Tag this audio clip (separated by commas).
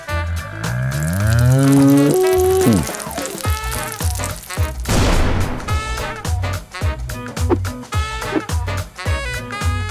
Music